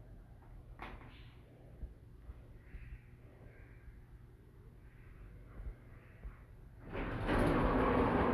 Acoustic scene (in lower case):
elevator